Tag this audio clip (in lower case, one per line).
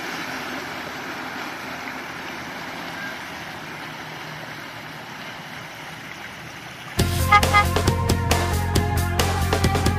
music
boat
vehicle
motorboat